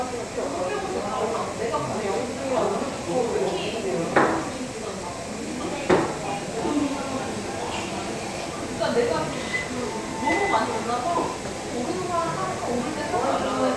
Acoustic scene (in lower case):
cafe